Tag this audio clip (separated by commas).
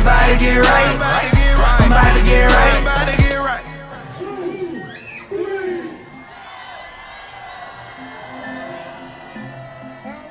Music